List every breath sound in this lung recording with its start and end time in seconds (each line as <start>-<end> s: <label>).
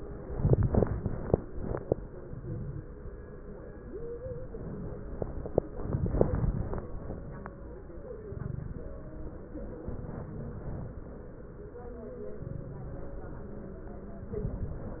2.17-2.90 s: inhalation
2.17-2.90 s: crackles
8.30-8.95 s: inhalation
8.30-8.95 s: crackles
9.88-10.94 s: inhalation
9.88-10.94 s: crackles
12.41-13.19 s: inhalation
12.41-13.19 s: crackles
14.33-15.00 s: inhalation
14.33-15.00 s: crackles